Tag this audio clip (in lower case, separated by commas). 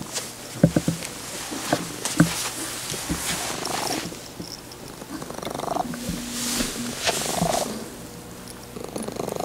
cat purring